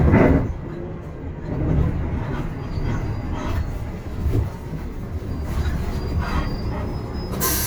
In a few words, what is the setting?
bus